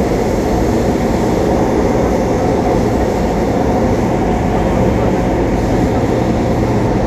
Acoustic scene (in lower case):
subway train